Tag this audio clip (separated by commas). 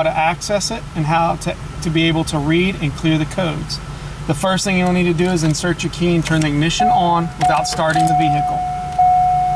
Vehicle, Speech, Car